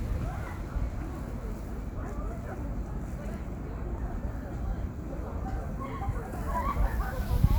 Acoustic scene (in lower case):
residential area